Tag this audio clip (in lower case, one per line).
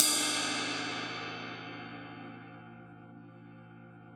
crash cymbal
musical instrument
percussion
cymbal
music